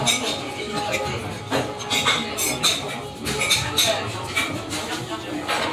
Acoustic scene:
restaurant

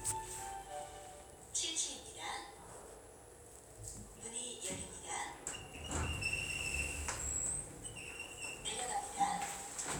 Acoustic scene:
elevator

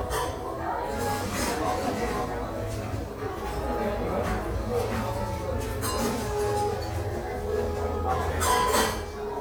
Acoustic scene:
cafe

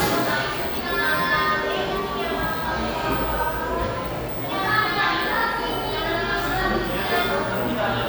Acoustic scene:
cafe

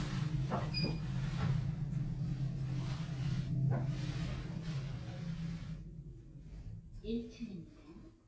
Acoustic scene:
elevator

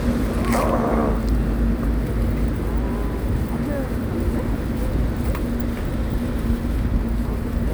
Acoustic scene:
street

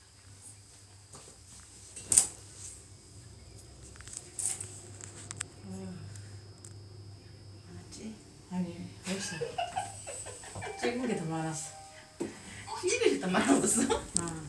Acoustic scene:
elevator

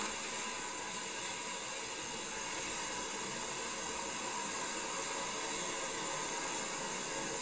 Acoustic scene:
car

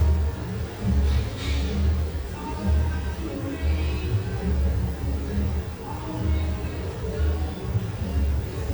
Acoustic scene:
cafe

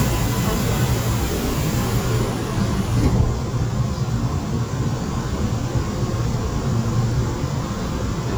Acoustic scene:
subway train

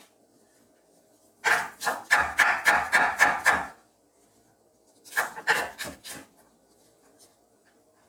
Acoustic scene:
kitchen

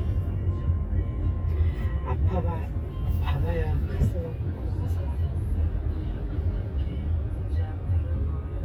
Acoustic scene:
car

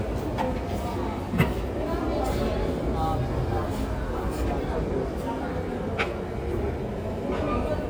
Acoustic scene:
subway station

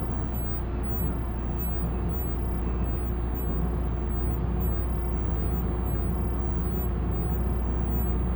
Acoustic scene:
bus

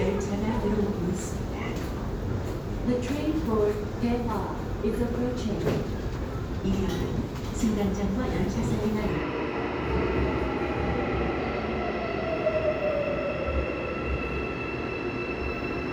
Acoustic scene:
subway station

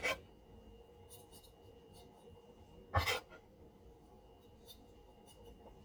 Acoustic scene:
kitchen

